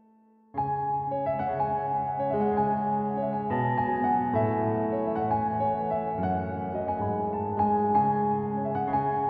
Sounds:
Keyboard (musical), Music

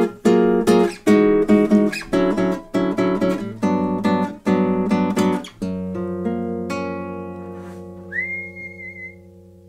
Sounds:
Acoustic guitar, Music, Musical instrument, Guitar

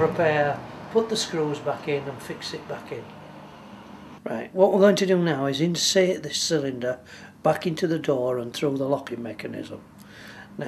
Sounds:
Speech

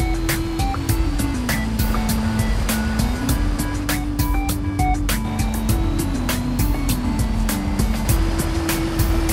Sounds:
Vehicle, Music, Truck

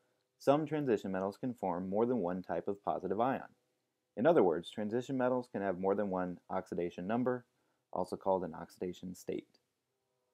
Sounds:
Speech

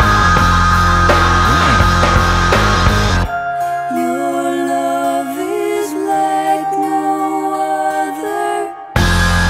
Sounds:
Music

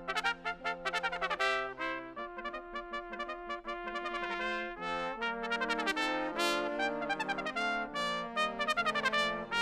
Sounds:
Jazz, Orchestra, Brass instrument, Trumpet, Trombone, Music, Musical instrument

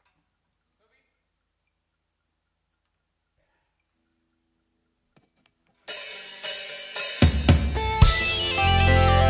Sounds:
Music

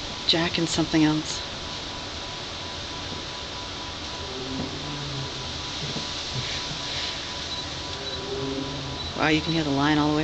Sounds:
Speech

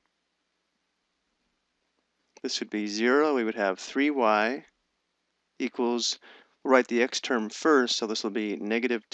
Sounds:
Speech

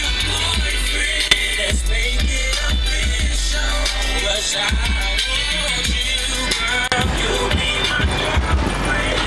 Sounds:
Music

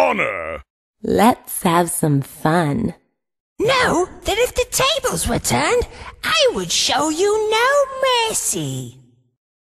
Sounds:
Speech

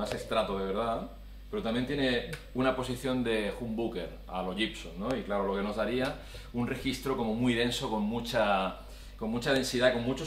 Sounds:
Speech

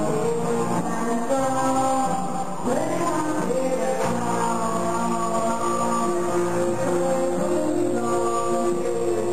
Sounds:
Music

